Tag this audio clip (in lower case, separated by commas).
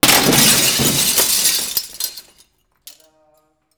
glass, shatter